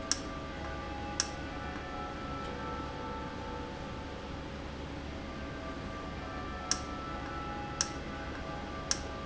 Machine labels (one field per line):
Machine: valve